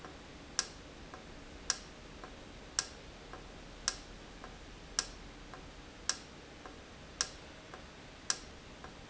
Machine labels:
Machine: valve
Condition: normal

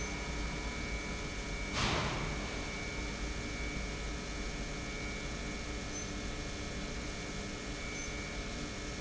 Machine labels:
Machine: pump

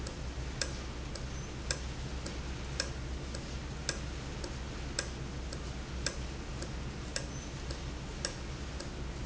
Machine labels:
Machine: valve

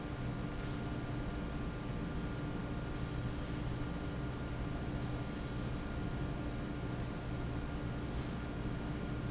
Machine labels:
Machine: fan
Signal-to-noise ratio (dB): -6 dB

